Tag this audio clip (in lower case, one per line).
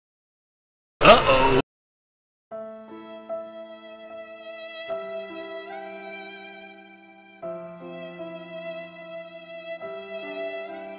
music